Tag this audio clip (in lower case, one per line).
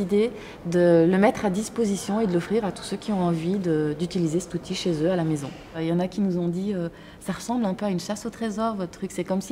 speech